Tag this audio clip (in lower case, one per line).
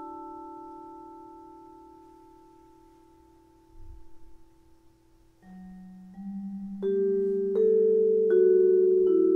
music